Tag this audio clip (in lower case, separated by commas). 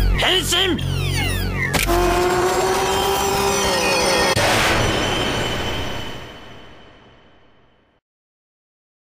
speech